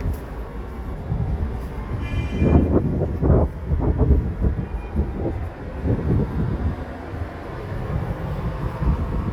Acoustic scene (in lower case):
street